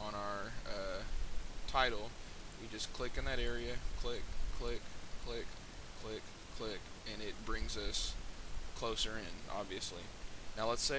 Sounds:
Speech

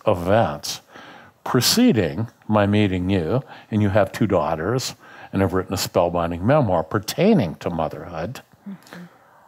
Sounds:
Speech

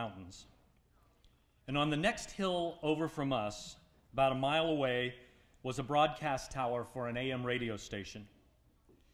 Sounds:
Speech, Male speech, Narration

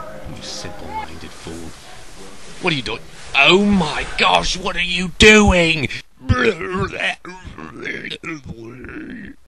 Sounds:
Speech

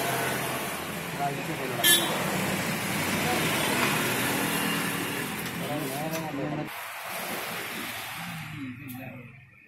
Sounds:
reversing beeps

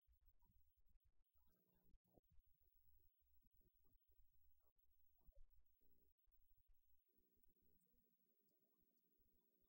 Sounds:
Speech

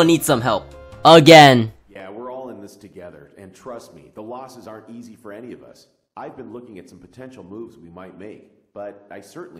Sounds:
Speech

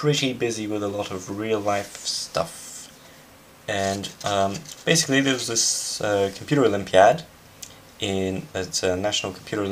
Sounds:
Speech

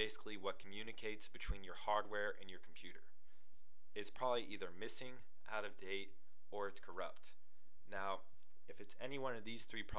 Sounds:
Speech

